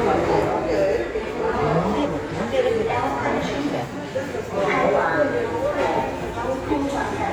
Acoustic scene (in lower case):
subway station